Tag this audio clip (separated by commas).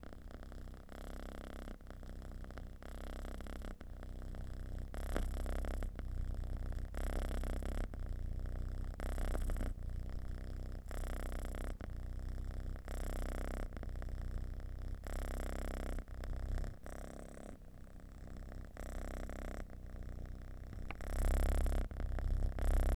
Cat, Animal, pets, Purr